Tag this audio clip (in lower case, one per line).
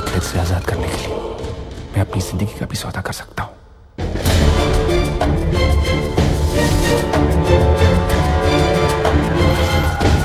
music
speech